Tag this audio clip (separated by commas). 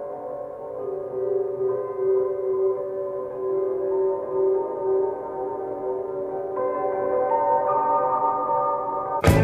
Music